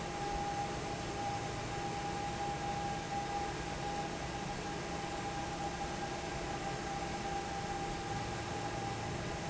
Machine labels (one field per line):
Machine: fan